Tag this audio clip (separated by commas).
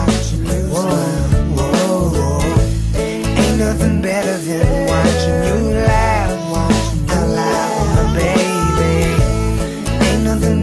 Music